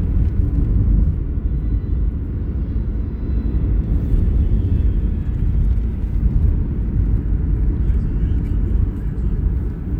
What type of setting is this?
car